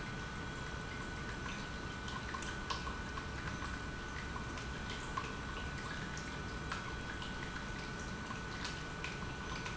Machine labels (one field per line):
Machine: pump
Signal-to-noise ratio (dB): 0 dB